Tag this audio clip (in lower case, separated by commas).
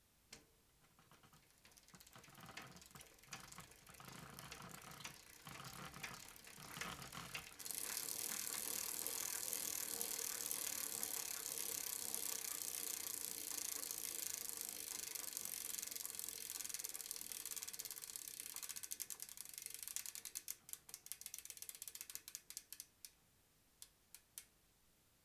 vehicle, bicycle